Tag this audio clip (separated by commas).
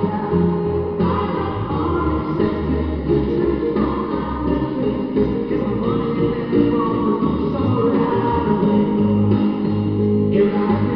Musical instrument, Music, Drum kit